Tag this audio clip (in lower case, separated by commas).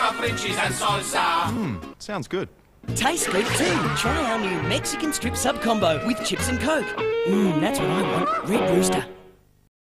music, speech